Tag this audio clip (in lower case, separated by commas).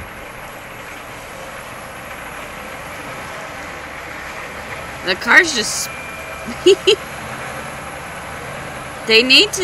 vehicle, speech, car